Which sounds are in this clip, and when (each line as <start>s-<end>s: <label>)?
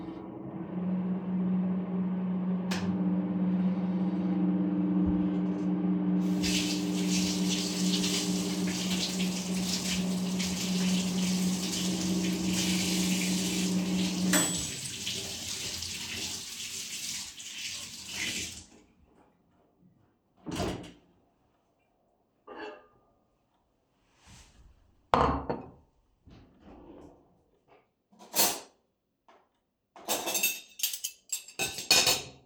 0.0s-14.9s: microwave
6.4s-18.9s: running water
20.4s-20.9s: microwave
22.5s-22.9s: cutlery and dishes
25.1s-25.7s: cutlery and dishes
28.2s-28.7s: cutlery and dishes
29.7s-32.5s: cutlery and dishes